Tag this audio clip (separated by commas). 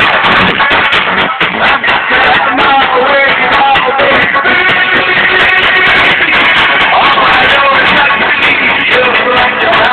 Music